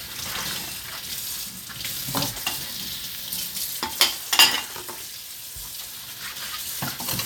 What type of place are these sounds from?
kitchen